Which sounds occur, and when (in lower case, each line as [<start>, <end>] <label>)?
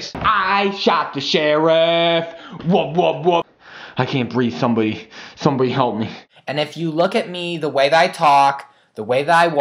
[0.00, 0.10] human sounds
[0.01, 9.60] background noise
[0.10, 0.29] tap
[0.12, 2.22] male singing
[2.34, 2.54] breathing
[2.50, 3.37] human voice
[3.57, 3.89] breathing
[3.66, 5.01] male speech
[5.03, 5.33] breathing
[5.38, 6.09] male speech
[6.00, 6.24] breathing
[6.44, 8.65] male speech
[8.63, 8.89] breathing
[8.91, 9.60] male speech